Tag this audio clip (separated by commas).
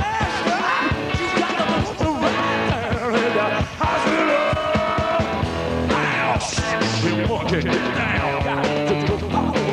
Music